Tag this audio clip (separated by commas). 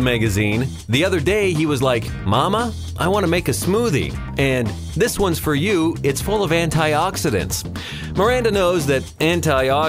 Speech, Music